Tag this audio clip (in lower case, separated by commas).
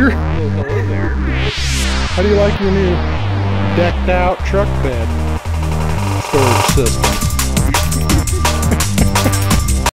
music, speech